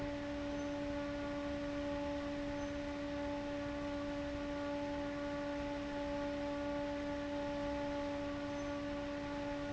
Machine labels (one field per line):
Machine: fan